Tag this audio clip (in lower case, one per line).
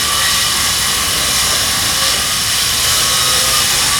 sawing
tools